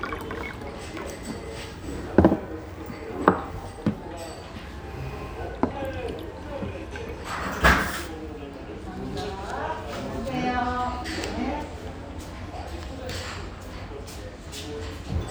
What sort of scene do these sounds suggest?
restaurant